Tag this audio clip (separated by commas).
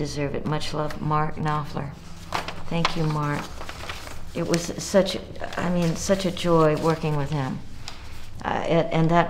Speech